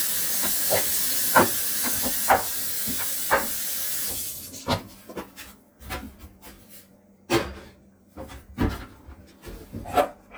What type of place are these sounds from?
kitchen